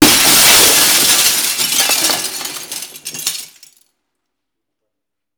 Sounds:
glass
shatter

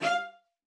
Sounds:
bowed string instrument
musical instrument
music

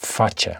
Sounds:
male speech
human voice
speech

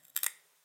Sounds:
crackle

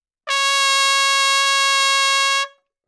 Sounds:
brass instrument
musical instrument
trumpet
music

